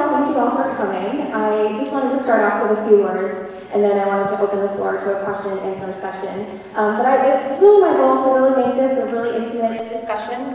An amplified female voice echoes within a large space